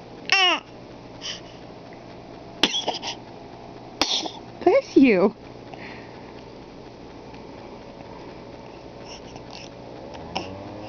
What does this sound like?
Baby talking then sneezing and a woman speaking